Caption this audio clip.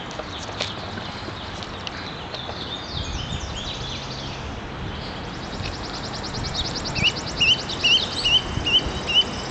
Birds chirping in loud high pitch tones